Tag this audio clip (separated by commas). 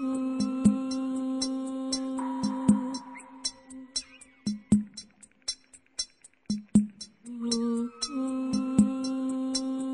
Music